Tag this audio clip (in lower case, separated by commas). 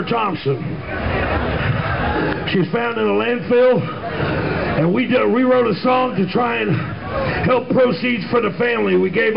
speech